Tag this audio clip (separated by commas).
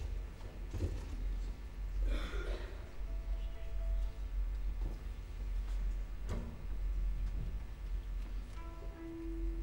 Music, Musical instrument